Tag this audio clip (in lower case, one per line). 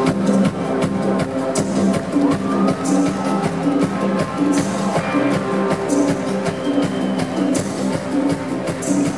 music